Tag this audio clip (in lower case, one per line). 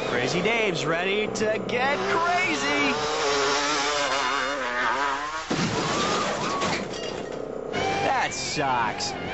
music
speech
motorcycle
vehicle